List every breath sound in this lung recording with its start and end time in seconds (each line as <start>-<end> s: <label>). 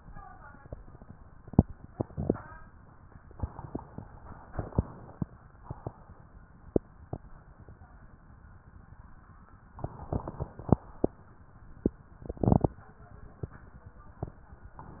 3.30-4.20 s: inhalation
4.24-5.25 s: exhalation
9.81-10.73 s: inhalation
10.73-11.16 s: exhalation